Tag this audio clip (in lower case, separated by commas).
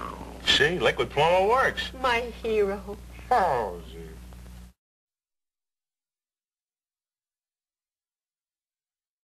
speech